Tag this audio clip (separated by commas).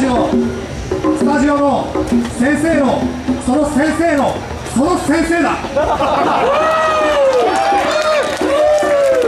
Speech, Music